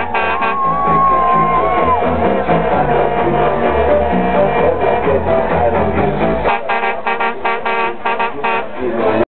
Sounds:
Music

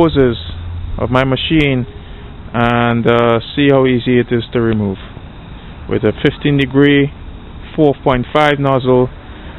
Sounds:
Speech

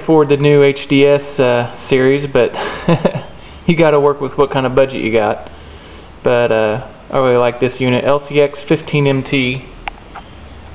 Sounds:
Speech

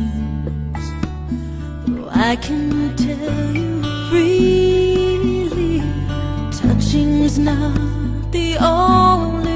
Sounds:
Music

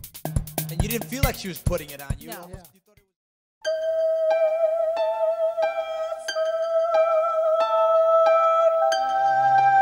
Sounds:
Music, Speech

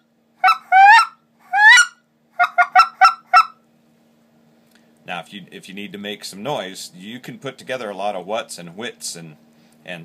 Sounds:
Speech, Goose

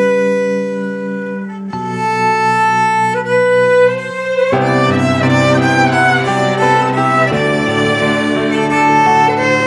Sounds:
Music, Musical instrument

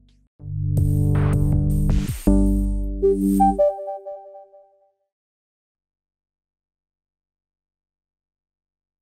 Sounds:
Music

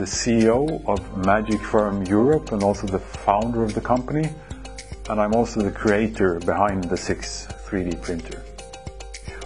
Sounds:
Speech, Music

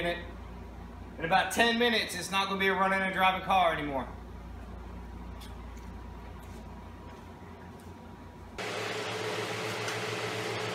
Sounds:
Speech

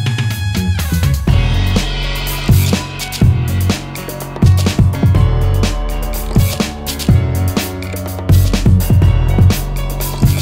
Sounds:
Music

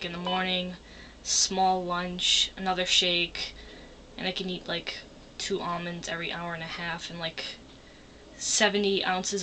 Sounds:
Speech

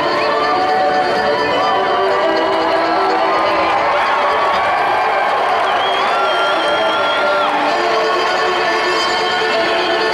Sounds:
Violin, Musical instrument, Music

